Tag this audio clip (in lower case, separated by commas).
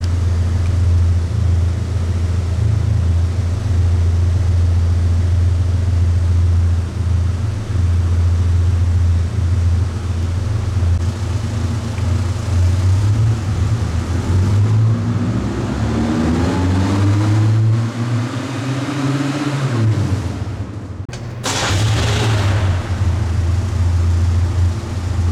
idling, engine, car, accelerating, vehicle, engine starting, motor vehicle (road)